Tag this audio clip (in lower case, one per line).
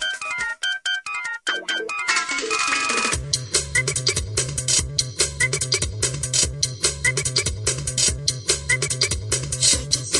music